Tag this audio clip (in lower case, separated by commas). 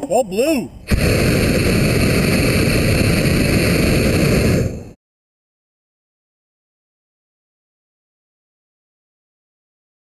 speech